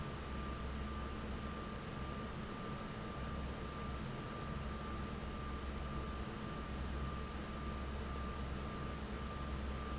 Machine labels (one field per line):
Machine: fan